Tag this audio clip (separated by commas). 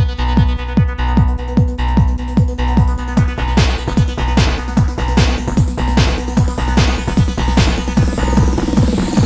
Music